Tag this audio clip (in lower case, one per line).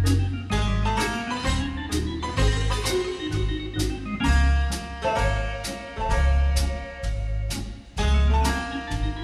music
jazz